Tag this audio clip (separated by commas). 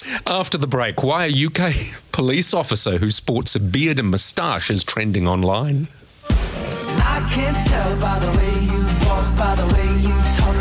Music, Speech, Chuckle